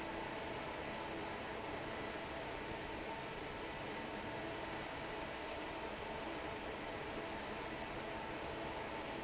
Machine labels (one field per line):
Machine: fan